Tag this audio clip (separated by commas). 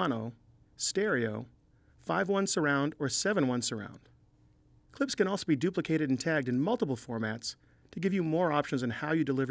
Speech